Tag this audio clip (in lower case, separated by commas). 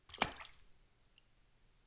liquid, splash